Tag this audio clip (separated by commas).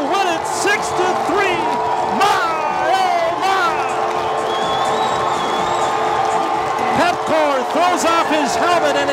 Music, Speech